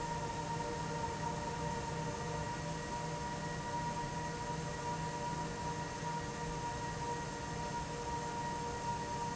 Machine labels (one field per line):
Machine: fan